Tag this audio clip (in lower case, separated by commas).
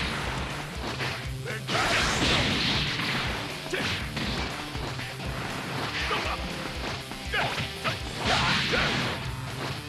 pop, music, speech